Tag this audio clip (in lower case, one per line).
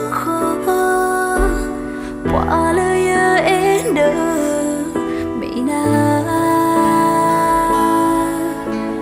music